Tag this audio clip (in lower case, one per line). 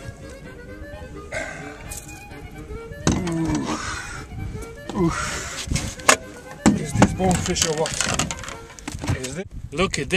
speech
music
outside, rural or natural